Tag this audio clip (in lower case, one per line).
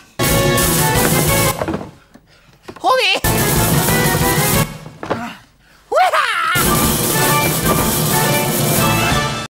music
speech